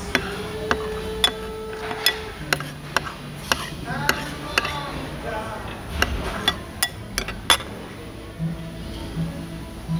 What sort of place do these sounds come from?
restaurant